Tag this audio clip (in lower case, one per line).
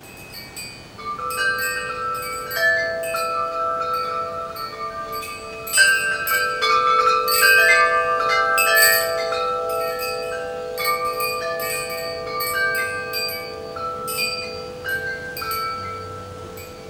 bell
wind chime
chime